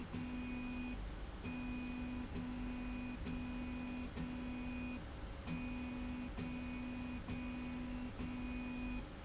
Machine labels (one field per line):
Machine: slide rail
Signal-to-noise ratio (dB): 6 dB